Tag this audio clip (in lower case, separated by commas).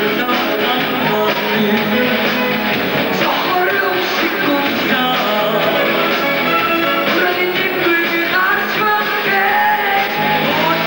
exciting music, soundtrack music, music